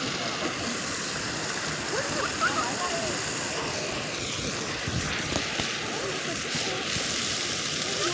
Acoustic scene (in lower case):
park